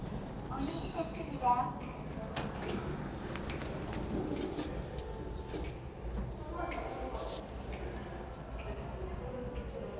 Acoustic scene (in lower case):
elevator